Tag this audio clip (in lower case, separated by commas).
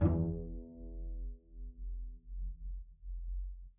bowed string instrument, music, musical instrument